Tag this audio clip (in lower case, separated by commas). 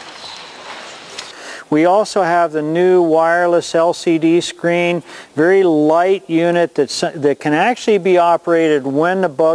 speech